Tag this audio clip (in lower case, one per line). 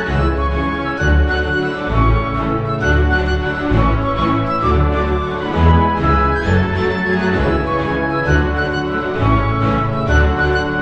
music